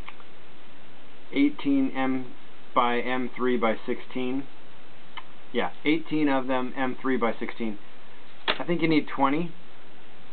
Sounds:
Speech

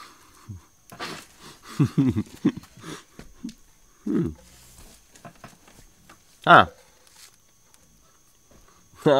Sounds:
Speech

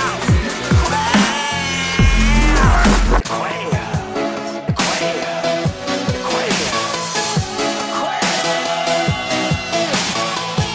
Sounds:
Dubstep, Music, Electronic music

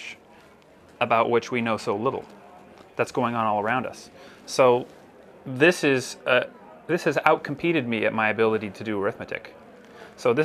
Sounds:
Speech

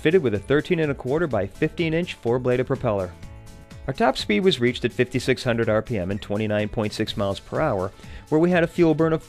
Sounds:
Speech, Music

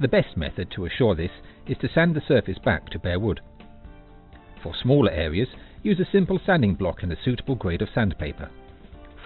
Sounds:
Music, Speech

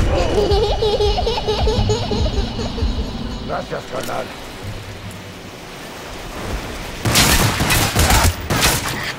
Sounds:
Speech

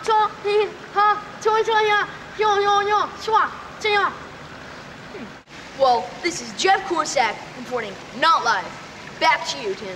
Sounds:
Speech, Stream

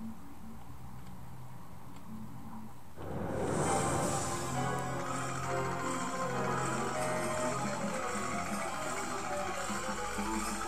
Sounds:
Music

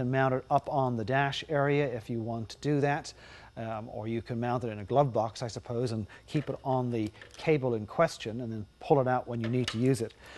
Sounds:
Speech

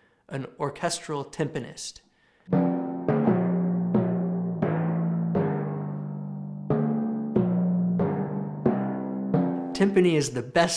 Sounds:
playing timpani

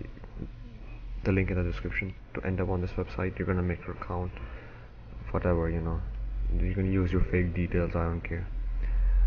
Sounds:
Speech

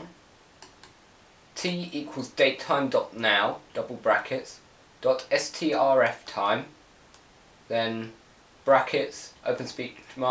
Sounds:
Speech

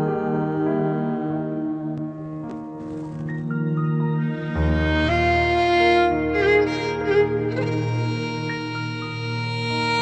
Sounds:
playing violin, Musical instrument, Violin, Music, Country

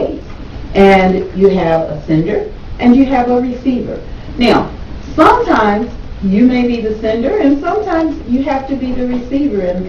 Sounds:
Speech

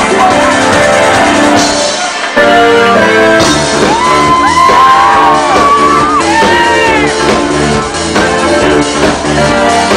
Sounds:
Music

